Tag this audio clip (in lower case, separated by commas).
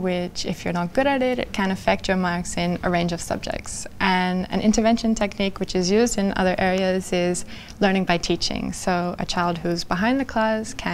speech, inside a small room